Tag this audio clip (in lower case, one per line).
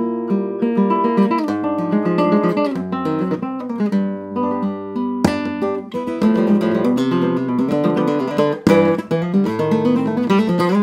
strum
plucked string instrument
music
guitar
acoustic guitar
musical instrument
flamenco